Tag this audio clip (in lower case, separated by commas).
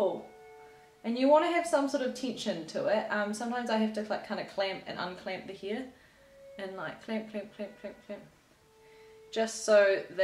speech, music